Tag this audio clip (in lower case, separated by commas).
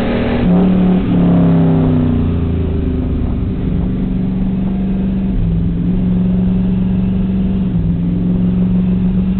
accelerating, car, vehicle